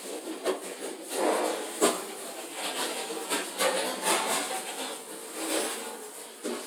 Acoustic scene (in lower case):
kitchen